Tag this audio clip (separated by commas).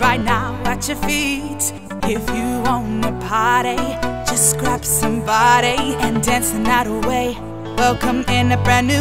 Music